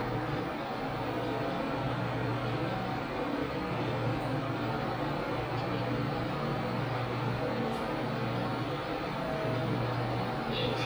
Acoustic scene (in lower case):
elevator